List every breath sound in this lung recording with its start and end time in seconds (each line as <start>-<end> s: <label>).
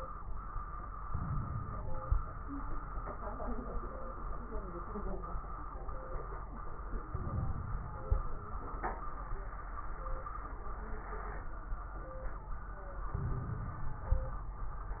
1.07-2.06 s: inhalation
1.07-2.06 s: crackles
2.06-2.75 s: exhalation
2.07-2.75 s: crackles
7.11-8.10 s: inhalation
7.11-8.10 s: crackles
8.09-8.71 s: exhalation
8.12-8.71 s: crackles
13.14-14.12 s: inhalation
13.14-14.12 s: crackles
14.15-14.68 s: exhalation
14.15-14.68 s: crackles